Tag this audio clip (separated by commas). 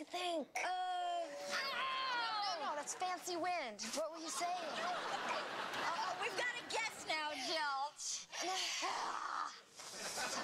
Speech, Giggle, inside a small room